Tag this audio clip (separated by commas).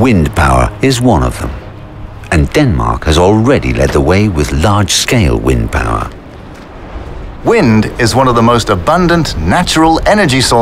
Speech, Music